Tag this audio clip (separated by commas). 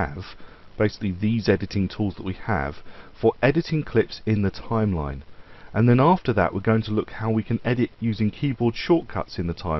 Speech